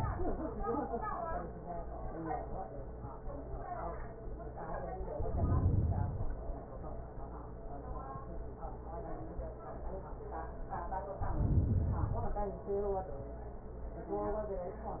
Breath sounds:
Inhalation: 5.02-6.52 s, 11.16-12.68 s

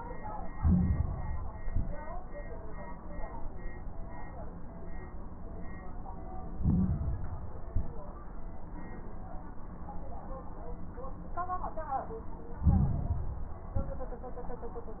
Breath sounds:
Inhalation: 0.45-1.48 s, 6.52-7.54 s, 12.58-13.60 s
Exhalation: 1.54-2.03 s, 7.64-8.13 s, 13.74-14.23 s
Crackles: 0.45-1.48 s, 1.54-2.03 s, 6.52-7.54 s, 7.64-8.13 s, 12.58-13.60 s, 13.74-14.23 s

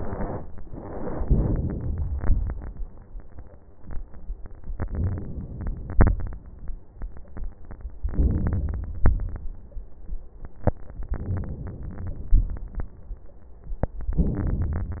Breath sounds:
Inhalation: 1.24-2.10 s, 4.84-5.94 s, 8.06-9.02 s, 11.13-12.34 s, 14.14-15.00 s
Exhalation: 2.16-2.82 s, 5.94-6.64 s, 9.02-9.46 s, 12.37-12.91 s

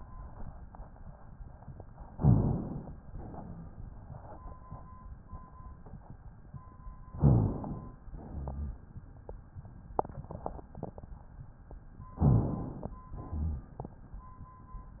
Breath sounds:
Inhalation: 2.15-3.00 s, 7.13-7.99 s, 12.22-12.96 s
Exhalation: 3.06-3.91 s, 8.16-9.01 s, 13.17-13.91 s
Rhonchi: 2.16-2.71 s, 7.13-7.55 s, 8.16-9.01 s, 12.20-12.62 s, 13.17-13.91 s

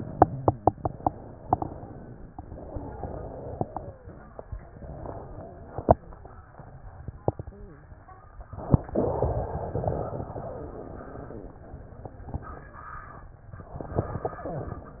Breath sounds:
Inhalation: 0.00-1.11 s, 2.38-4.12 s, 8.37-8.90 s, 13.60-14.80 s
Exhalation: 1.11-2.30 s, 4.38-6.02 s, 8.89-11.61 s
Wheeze: 2.38-4.12 s, 4.88-6.02 s, 8.89-11.61 s
Crackles: 0.00-1.11 s, 8.37-8.90 s, 8.89-11.61 s, 13.60-14.80 s

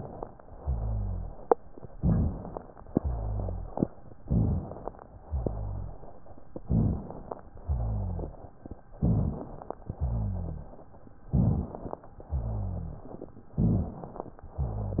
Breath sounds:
Inhalation: 1.97-2.61 s, 4.23-4.87 s, 6.68-7.32 s, 8.99-9.63 s, 11.35-11.98 s, 13.62-14.39 s
Exhalation: 0.61-1.37 s, 3.00-3.76 s, 5.25-6.02 s, 7.67-8.43 s, 9.98-10.74 s, 12.31-13.07 s, 14.59-15.00 s
Rhonchi: 0.61-1.37 s, 3.00-3.76 s, 5.25-6.02 s, 7.67-8.43 s, 9.98-10.74 s, 12.31-13.07 s, 14.59-15.00 s
Crackles: 1.97-2.61 s, 4.23-4.87 s, 6.68-7.32 s, 8.99-9.63 s, 11.35-11.98 s, 13.62-14.39 s

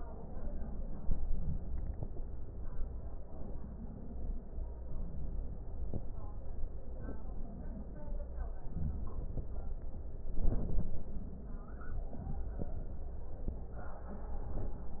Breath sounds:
Inhalation: 10.31-11.24 s

